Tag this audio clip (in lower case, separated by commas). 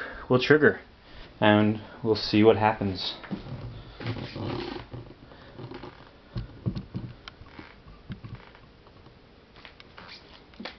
speech